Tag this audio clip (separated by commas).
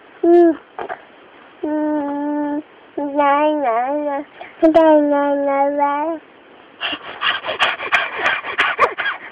Laughter